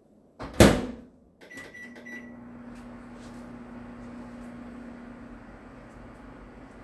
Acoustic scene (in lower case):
kitchen